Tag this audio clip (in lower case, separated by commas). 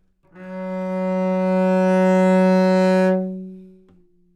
bowed string instrument, musical instrument, music